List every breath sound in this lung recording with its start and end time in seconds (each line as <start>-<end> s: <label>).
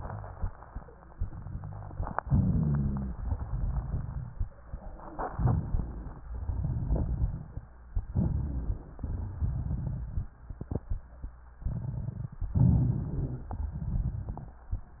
2.22-3.13 s: inhalation
2.22-3.13 s: rhonchi
3.17-4.48 s: exhalation
3.17-4.48 s: crackles
5.28-6.24 s: inhalation
5.28-6.24 s: crackles
6.28-7.71 s: exhalation
6.28-7.71 s: crackles
8.01-8.99 s: inhalation
8.01-8.99 s: crackles
9.05-10.34 s: exhalation
9.05-10.34 s: crackles
11.65-12.51 s: crackles
12.56-13.48 s: crackles
12.56-13.55 s: inhalation
13.55-15.00 s: crackles